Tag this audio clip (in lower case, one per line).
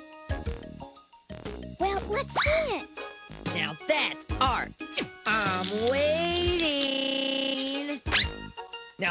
speech
music